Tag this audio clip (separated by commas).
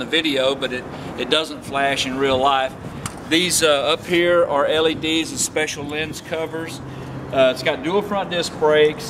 Speech